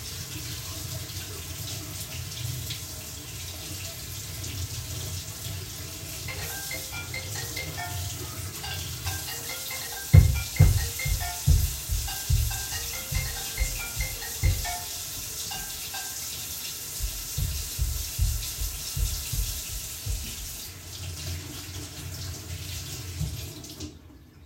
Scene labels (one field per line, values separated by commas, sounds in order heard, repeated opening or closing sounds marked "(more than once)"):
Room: bathroom, hallway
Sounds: running water, phone ringing, footsteps